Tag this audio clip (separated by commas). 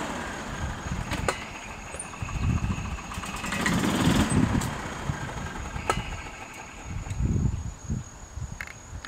Vehicle, Air brake, Car, Motor vehicle (road)